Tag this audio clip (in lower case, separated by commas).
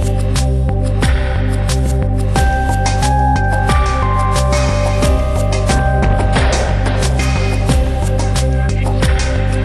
music